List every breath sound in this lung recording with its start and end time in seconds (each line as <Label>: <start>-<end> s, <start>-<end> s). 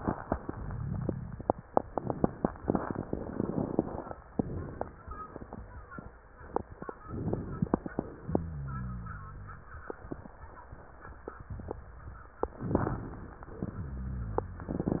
Inhalation: 7.06-8.21 s, 12.54-13.57 s
Exhalation: 8.27-9.72 s, 13.65-15.00 s
Rhonchi: 8.27-9.72 s, 13.65-15.00 s